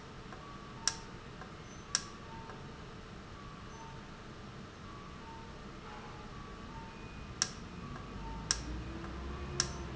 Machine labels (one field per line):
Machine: valve